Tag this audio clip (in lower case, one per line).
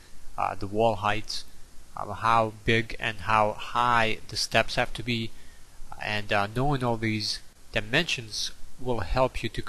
speech